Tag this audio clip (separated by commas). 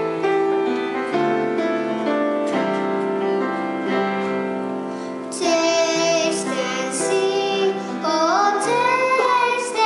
Music, Singing, inside a large room or hall